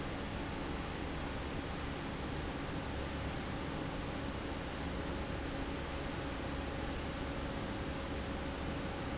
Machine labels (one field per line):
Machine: fan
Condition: abnormal